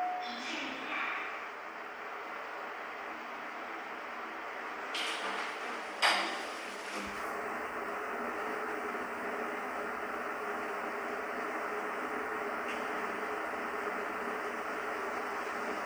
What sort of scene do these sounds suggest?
elevator